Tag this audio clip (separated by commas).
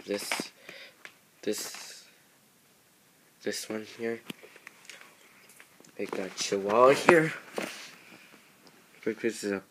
Speech